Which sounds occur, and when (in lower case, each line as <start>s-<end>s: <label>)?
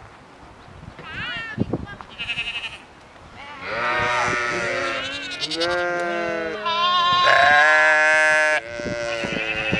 0.0s-9.7s: mechanisms
1.0s-1.6s: bleat
1.4s-2.1s: wind noise (microphone)
1.8s-2.0s: human sounds
2.2s-2.8s: bleat
3.4s-9.7s: bleat
8.7s-9.0s: wind noise (microphone)
9.2s-9.5s: wind noise (microphone)